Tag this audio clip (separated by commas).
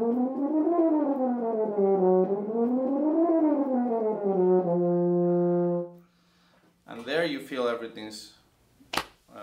playing french horn